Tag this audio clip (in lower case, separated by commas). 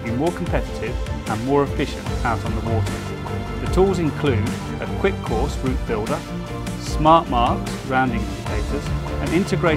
music, speech